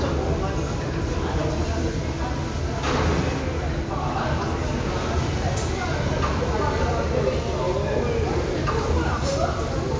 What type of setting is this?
restaurant